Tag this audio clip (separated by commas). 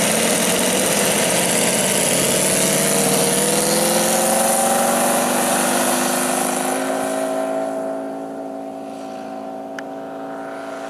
Vehicle, Engine, Aircraft, Accelerating